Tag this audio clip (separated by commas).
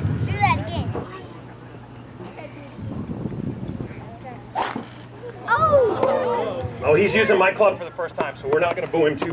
Speech